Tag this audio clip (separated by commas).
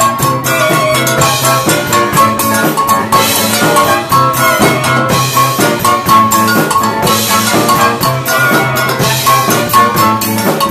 Music, Steelpan